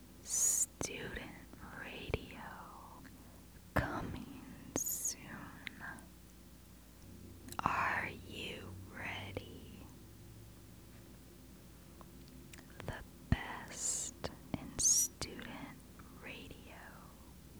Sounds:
whispering, human voice

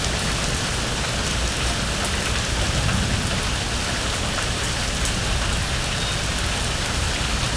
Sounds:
rain, water

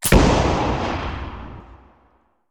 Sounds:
explosion, boom

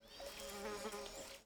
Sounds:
wild animals, animal, insect

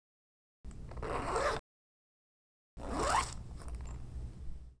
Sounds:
domestic sounds, zipper (clothing)

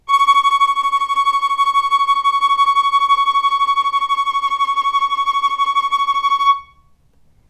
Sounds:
musical instrument, bowed string instrument, music

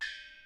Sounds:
musical instrument, gong, percussion, music

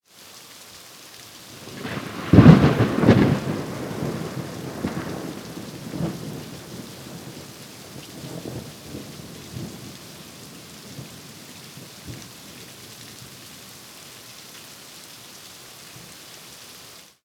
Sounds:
rain, thunder, water, thunderstorm

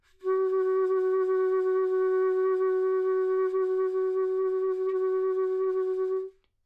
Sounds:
wind instrument, music, musical instrument

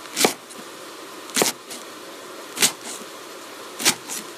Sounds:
domestic sounds

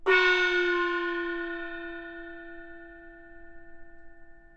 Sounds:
percussion, gong, music, musical instrument

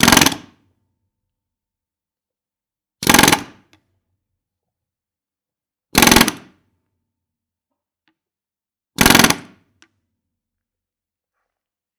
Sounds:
tools

